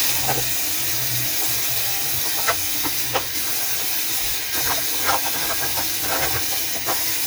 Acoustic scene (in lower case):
kitchen